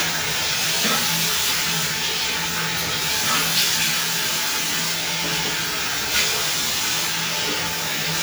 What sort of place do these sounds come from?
restroom